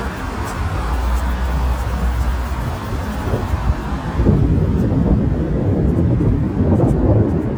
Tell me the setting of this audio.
street